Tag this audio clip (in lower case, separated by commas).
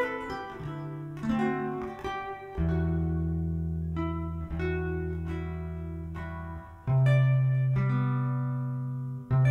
music